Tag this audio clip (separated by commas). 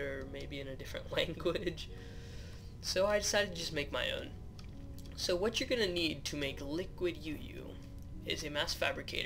Speech